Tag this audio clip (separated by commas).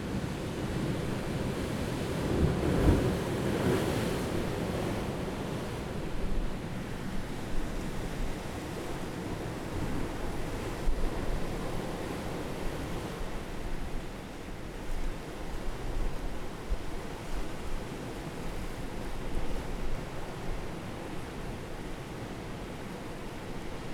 Ocean, Water, surf